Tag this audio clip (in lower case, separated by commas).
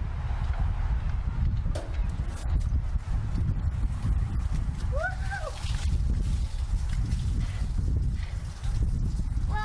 speech